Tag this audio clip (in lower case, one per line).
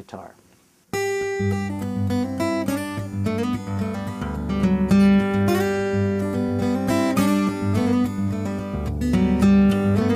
music
acoustic guitar
guitar
plucked string instrument
musical instrument